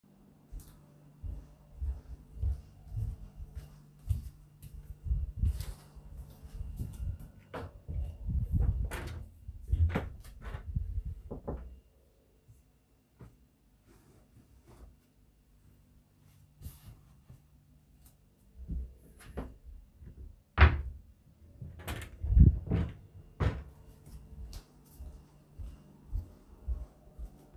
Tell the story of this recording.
I walked up to my wardrobe to get a t-shirt, when I found one I closed the wardrobe and walked away.